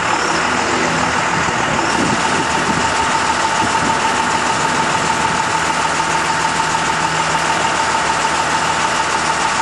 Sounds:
outside, urban or man-made, truck, vehicle

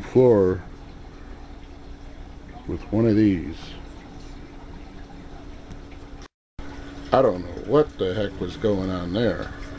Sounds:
speech, inside a small room

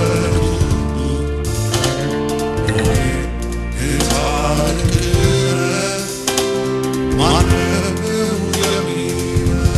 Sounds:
music, musical instrument, christian music, gospel music, singing

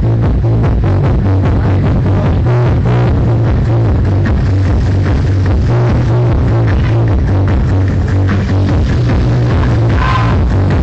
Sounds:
music, sound effect

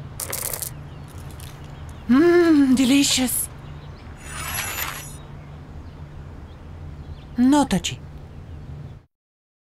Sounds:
speech

